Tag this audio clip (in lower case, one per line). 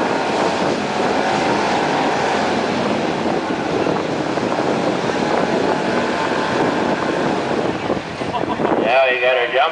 vehicle
speech